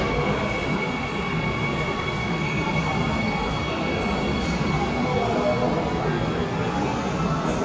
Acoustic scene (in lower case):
subway station